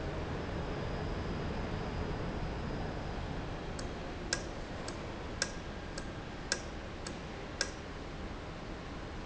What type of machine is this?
valve